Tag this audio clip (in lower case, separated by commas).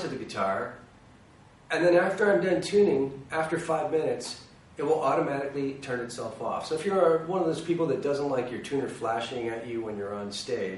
speech